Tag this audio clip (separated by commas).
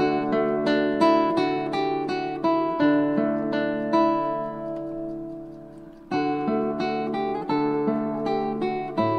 Guitar, Plucked string instrument, Strum, Musical instrument, Acoustic guitar, Music